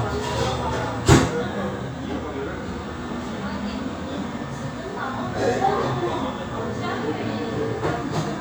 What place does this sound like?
cafe